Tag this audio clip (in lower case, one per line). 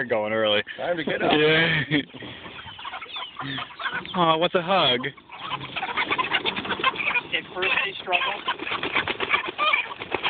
fowl
chicken
cluck